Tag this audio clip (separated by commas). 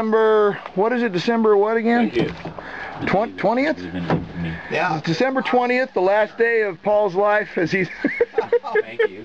outside, rural or natural, Speech